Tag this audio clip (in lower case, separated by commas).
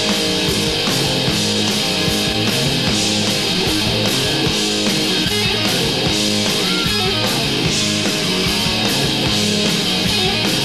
music